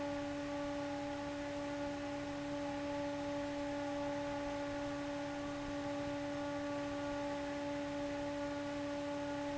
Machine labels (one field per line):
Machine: fan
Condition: abnormal